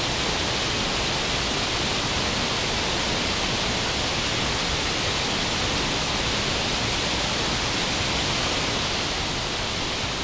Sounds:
waterfall, waterfall burbling

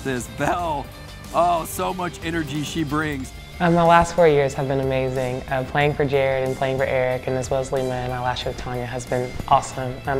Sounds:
music, speech

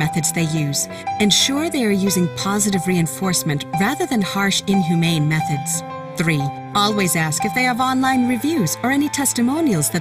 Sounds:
speech, music

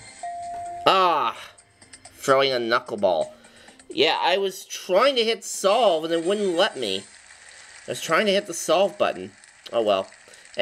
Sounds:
music, speech

